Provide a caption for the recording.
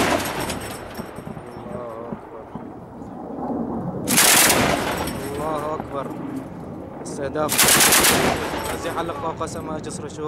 Gunshots blast and people speak